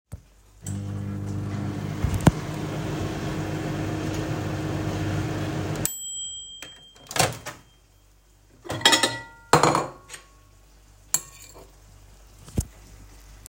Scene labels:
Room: kitchen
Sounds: microwave, cutlery and dishes

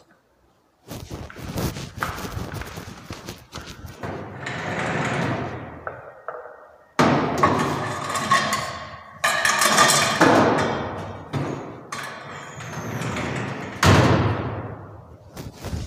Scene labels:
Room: kitchen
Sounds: footsteps, wardrobe or drawer (more than once), cutlery and dishes

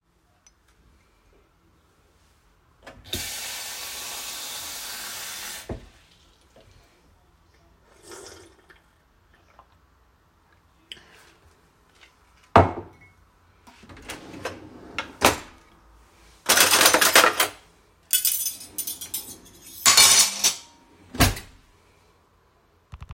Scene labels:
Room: kitchen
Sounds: running water, cutlery and dishes, wardrobe or drawer (more than once)

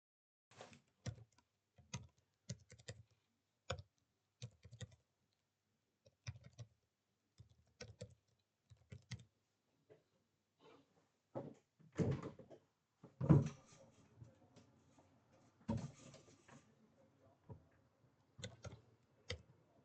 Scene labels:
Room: bedroom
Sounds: keyboard typing, window (more than once)

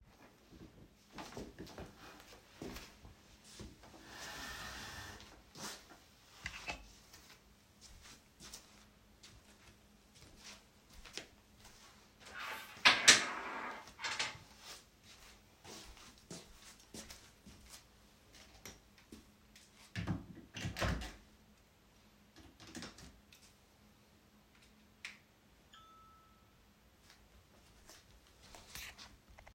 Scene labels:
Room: bedroom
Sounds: footsteps, phone ringing

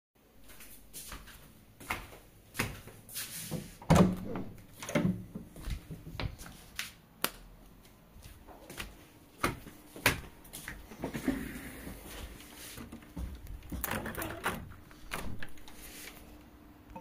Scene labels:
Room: hallway, bedroom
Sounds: footsteps, door, light switch, window

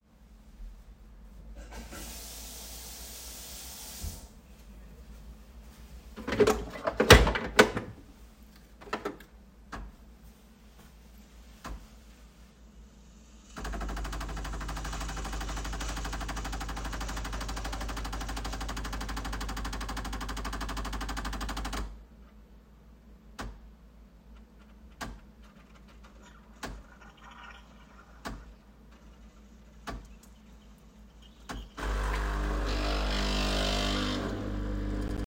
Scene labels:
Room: kitchen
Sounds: running water, coffee machine

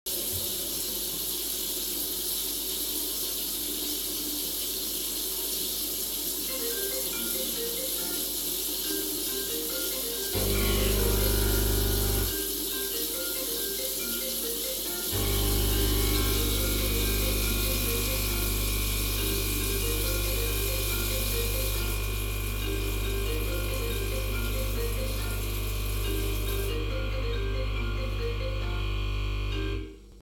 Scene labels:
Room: kitchen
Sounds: running water, phone ringing, coffee machine

